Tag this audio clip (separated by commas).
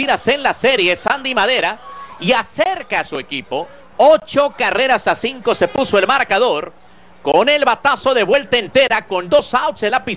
Speech